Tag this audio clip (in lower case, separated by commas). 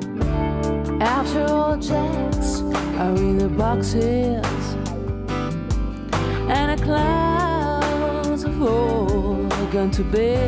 music